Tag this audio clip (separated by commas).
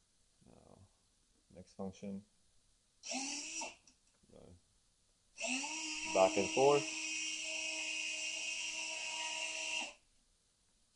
inside a small room, Speech